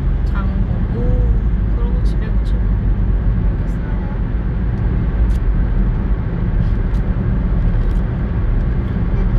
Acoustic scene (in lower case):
car